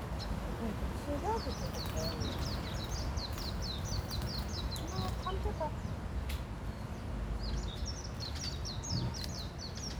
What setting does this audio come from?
park